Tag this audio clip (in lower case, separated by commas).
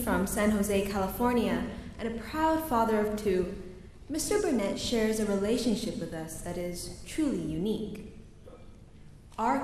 narration, woman speaking, speech